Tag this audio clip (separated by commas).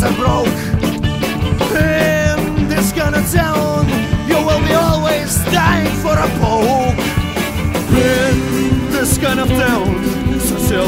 Punk rock, Music